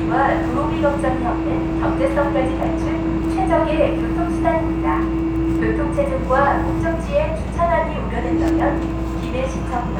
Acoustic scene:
subway train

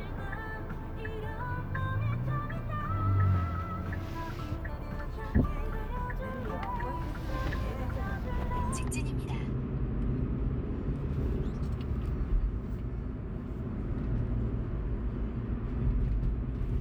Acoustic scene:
car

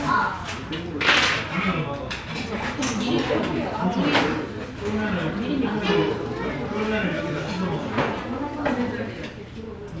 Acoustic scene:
restaurant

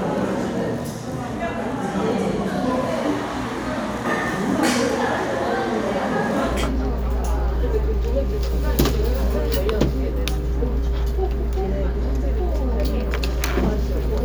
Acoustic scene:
crowded indoor space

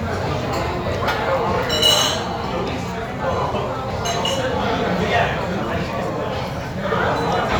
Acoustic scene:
restaurant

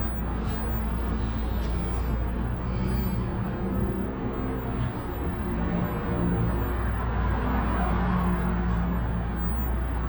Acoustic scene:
bus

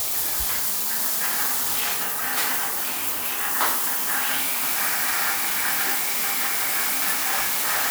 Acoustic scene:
restroom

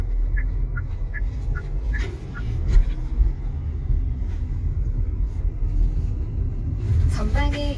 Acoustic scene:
car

